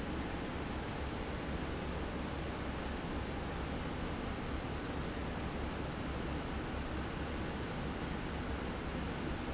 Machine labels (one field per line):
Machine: fan